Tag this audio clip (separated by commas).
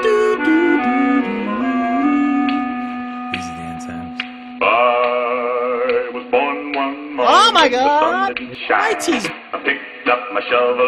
Speech, Music, inside a large room or hall